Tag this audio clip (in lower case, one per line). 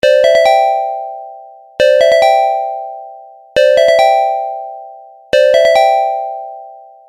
music
alarm
keyboard (musical)
telephone
ringtone
musical instrument